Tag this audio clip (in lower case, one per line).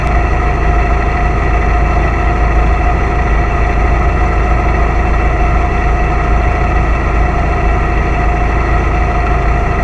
engine